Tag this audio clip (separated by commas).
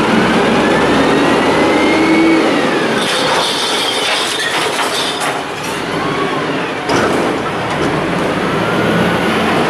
Vehicle, Truck, Car